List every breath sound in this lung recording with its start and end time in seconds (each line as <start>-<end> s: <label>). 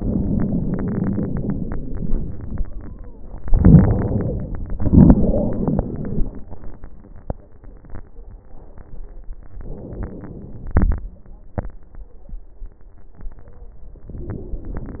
0.00-2.62 s: wheeze
0.00-2.91 s: exhalation
3.41-4.65 s: inhalation
3.41-4.65 s: wheeze
4.77-6.22 s: wheeze
4.77-6.44 s: exhalation
9.53-10.75 s: inhalation
14.12-15.00 s: inhalation
14.12-15.00 s: wheeze